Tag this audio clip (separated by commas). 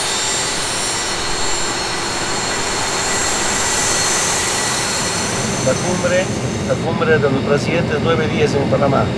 airplane